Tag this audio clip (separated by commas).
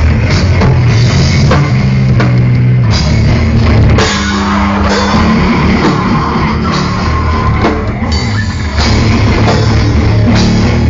Music, Rock music, Heavy metal